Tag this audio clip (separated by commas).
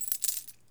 home sounds, Coin (dropping)